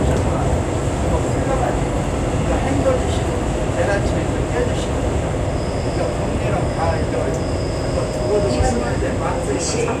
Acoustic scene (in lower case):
subway train